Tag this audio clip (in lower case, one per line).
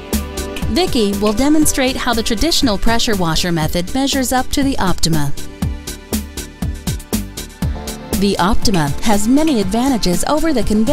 music
speech